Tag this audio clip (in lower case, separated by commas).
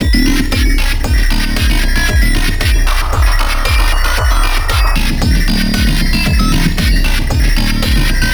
musical instrument, music, drum kit, percussion